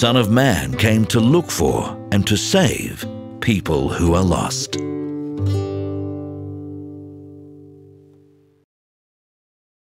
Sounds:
Music, Speech

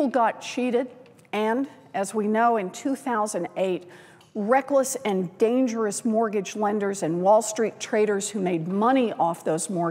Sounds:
Narration, Female speech, Speech

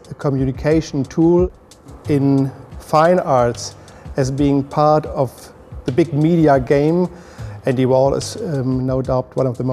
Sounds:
Speech, Music

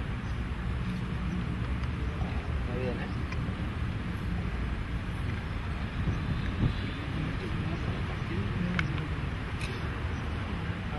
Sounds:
Speech

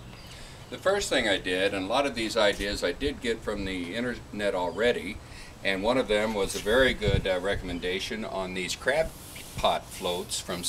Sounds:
Speech

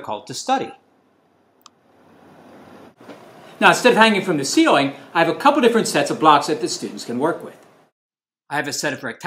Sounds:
Speech

